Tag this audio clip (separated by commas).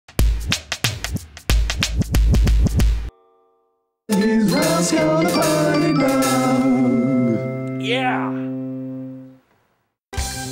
Music, Music for children